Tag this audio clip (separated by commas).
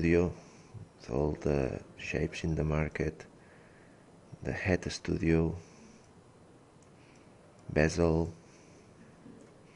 Speech